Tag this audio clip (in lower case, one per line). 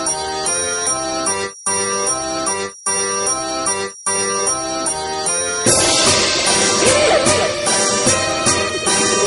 music